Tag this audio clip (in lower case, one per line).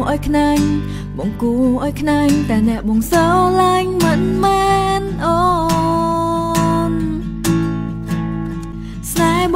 music